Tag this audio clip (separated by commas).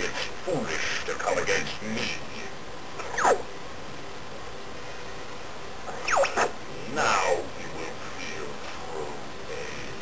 Speech